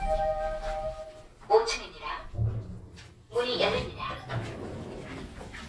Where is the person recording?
in an elevator